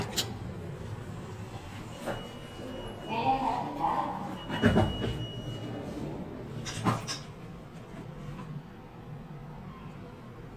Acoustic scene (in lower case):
elevator